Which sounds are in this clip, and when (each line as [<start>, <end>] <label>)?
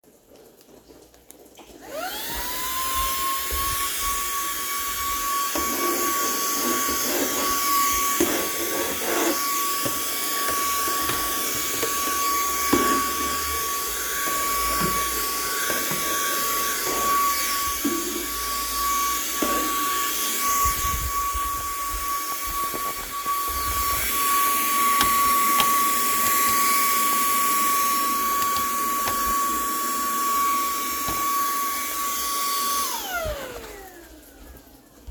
[1.60, 34.11] vacuum cleaner
[24.80, 25.85] door